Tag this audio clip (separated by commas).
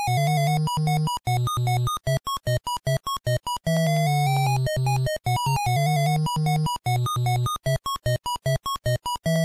Music